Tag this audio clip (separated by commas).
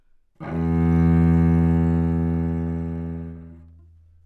Musical instrument, Music, Bowed string instrument